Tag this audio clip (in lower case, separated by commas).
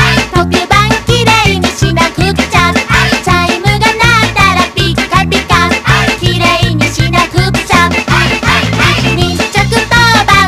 music